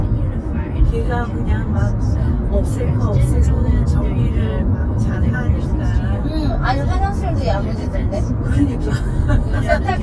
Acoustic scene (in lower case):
car